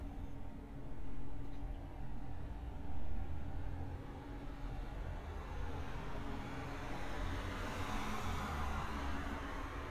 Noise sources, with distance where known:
medium-sounding engine, near

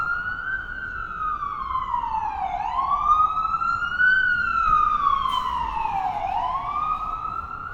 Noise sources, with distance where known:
siren, near

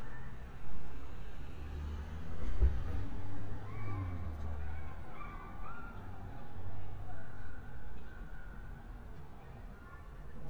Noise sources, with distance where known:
engine of unclear size, far; dog barking or whining, far

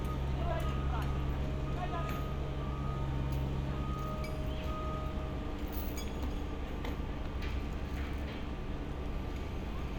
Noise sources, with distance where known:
large-sounding engine; reverse beeper, far; person or small group talking, far

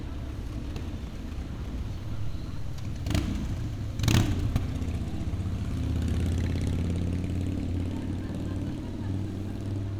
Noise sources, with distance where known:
small-sounding engine, near

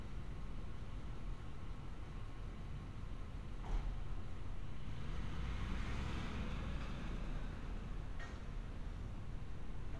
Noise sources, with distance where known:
engine of unclear size

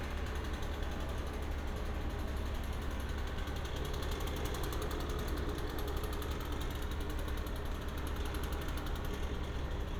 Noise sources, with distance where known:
medium-sounding engine

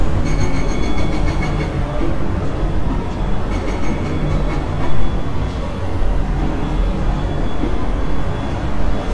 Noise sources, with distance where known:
engine of unclear size, near

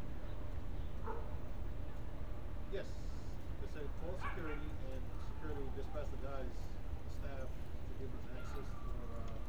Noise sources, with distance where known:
person or small group talking, near; dog barking or whining

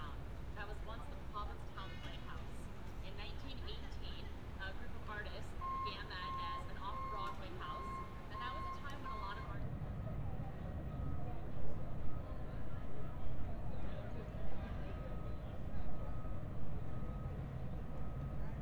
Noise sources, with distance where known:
reverse beeper; person or small group talking

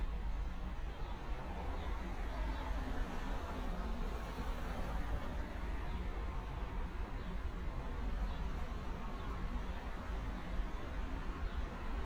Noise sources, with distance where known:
medium-sounding engine, far

